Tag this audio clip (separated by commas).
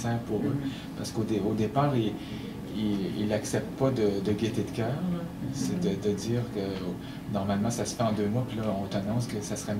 Speech